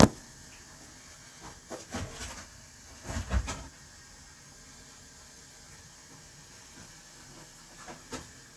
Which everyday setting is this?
kitchen